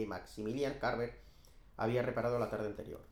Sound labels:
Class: speech